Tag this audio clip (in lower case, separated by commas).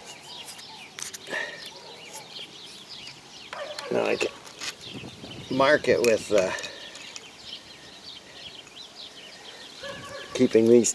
speech, outside, rural or natural, bird